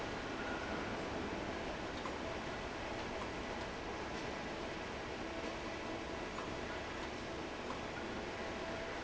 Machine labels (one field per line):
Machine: fan